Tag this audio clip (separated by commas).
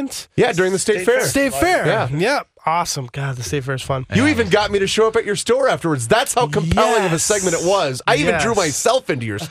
Speech